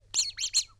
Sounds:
squeak

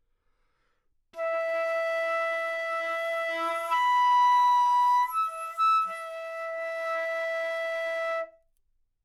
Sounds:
wind instrument
music
musical instrument

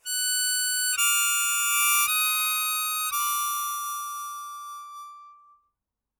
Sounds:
music
musical instrument
harmonica

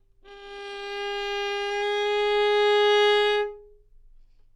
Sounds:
music
musical instrument
bowed string instrument

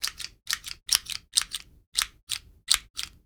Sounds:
tools

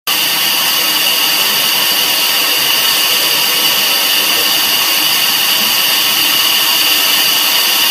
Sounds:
hiss

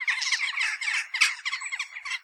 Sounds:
animal
wild animals
bird

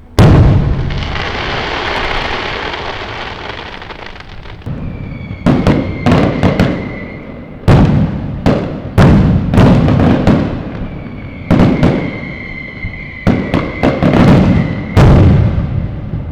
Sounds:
explosion
fireworks

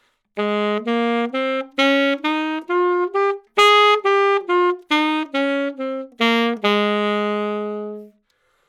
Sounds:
music
woodwind instrument
musical instrument

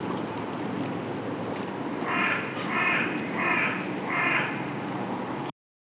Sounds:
wild animals
bird
crow
animal

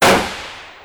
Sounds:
explosion
gunshot

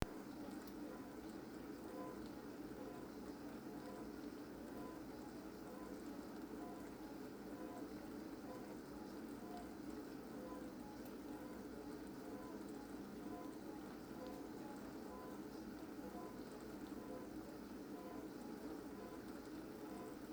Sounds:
engine

